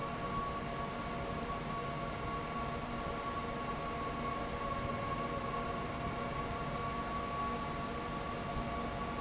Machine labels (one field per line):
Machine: fan